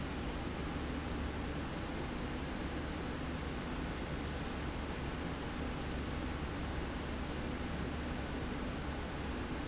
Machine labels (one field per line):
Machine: slide rail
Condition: normal